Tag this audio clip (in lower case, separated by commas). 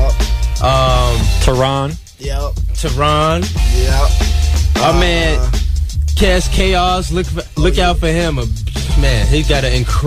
music, speech